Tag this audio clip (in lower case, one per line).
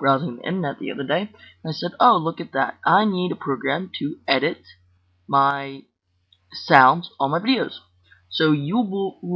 speech